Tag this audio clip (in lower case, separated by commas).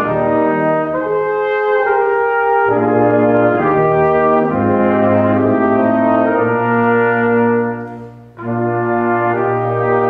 music, french horn, playing french horn